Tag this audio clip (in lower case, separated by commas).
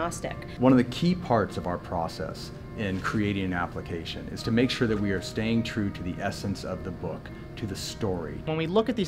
speech, music